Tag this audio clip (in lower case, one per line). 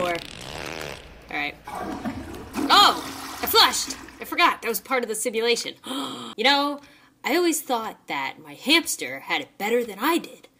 inside a small room
speech